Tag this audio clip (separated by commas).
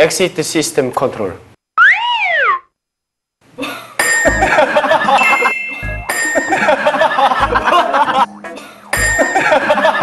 inside a large room or hall, Music, Speech